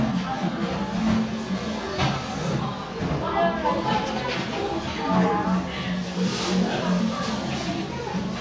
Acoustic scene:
crowded indoor space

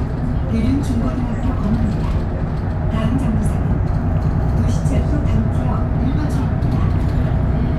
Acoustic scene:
bus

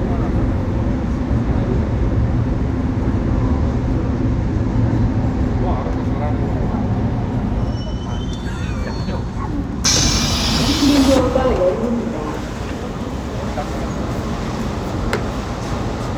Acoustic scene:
subway train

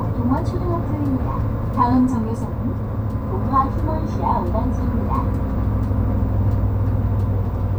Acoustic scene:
bus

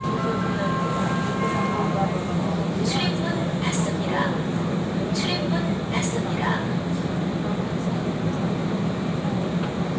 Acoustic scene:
subway train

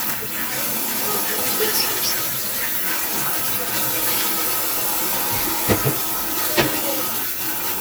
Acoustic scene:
kitchen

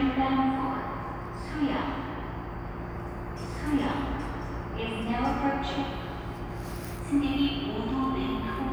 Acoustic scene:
subway station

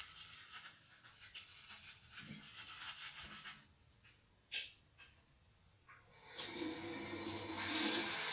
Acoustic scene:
restroom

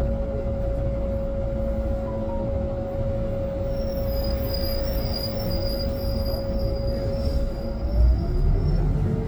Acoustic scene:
bus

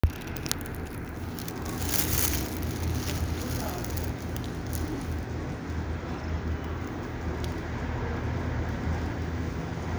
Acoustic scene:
residential area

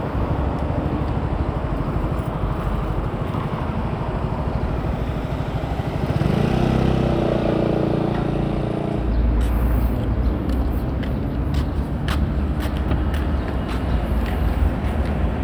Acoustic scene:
residential area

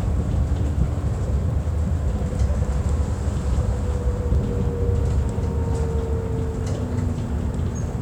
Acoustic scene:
bus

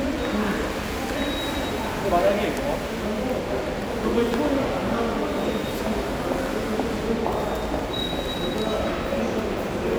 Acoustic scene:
subway station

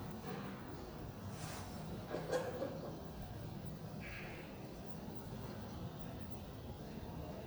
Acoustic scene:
elevator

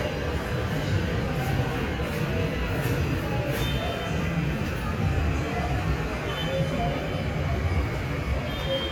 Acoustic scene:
subway station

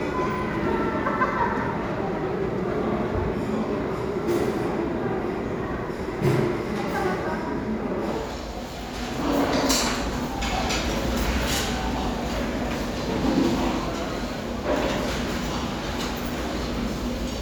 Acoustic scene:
restaurant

